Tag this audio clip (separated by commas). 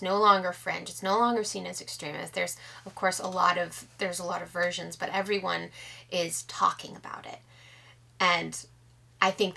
Speech